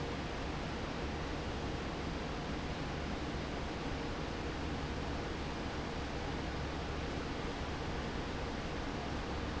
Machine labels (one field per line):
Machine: fan